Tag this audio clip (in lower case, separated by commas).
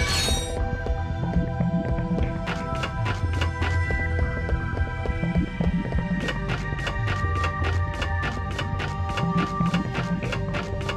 music